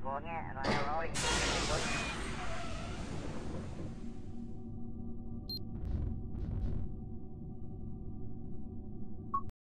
A voice is heard faintly followed by a large blast of air and a small digital beep